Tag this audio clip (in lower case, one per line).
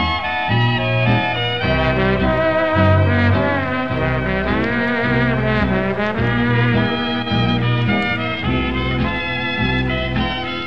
music